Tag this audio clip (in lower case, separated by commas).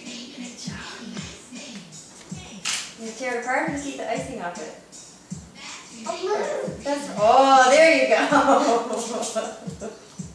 speech, music